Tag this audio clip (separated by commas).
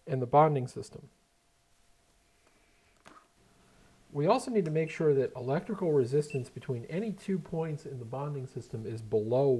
Speech